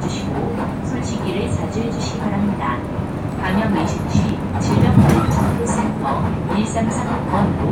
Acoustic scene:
bus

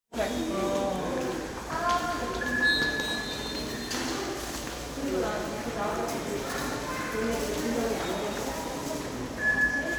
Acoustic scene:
subway station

